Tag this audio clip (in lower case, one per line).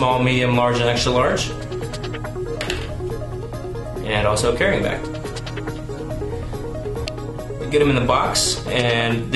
speech
music